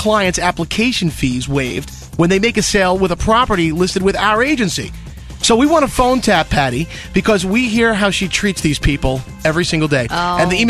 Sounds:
music
speech

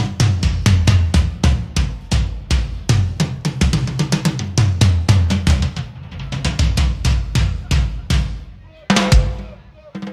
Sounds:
music

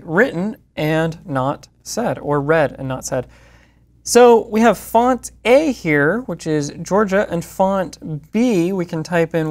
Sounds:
speech

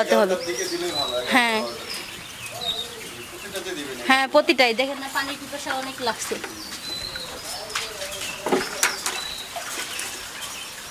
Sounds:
cuckoo bird calling

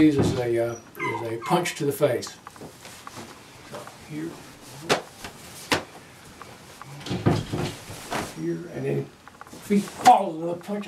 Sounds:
speech

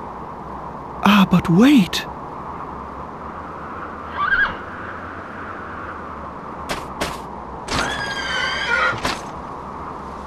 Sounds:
speech
outside, rural or natural

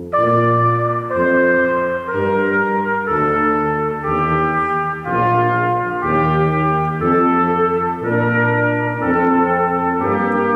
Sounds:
musical instrument
music
orchestra
trumpet
brass instrument

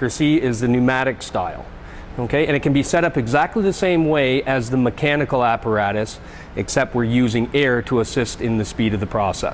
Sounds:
speech

